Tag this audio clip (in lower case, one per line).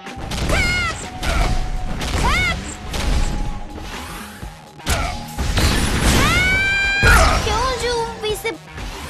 speech
music